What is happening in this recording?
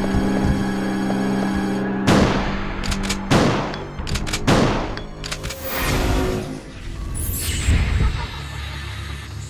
There are multiple gunshots during music sound effects